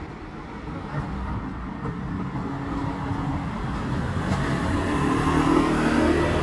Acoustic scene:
residential area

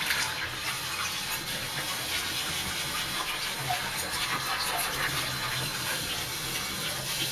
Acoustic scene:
kitchen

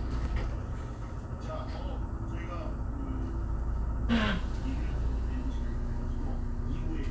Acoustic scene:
bus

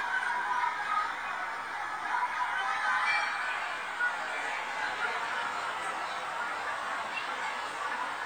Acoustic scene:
residential area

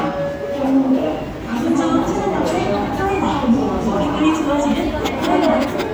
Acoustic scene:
subway station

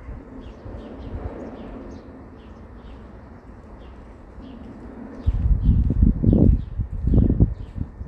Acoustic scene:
residential area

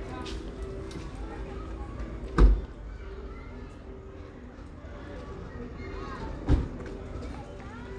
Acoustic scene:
residential area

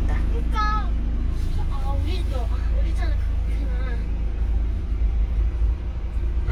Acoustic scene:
car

